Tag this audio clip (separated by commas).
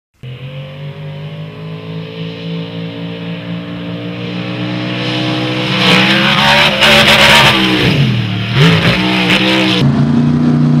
Truck, Vehicle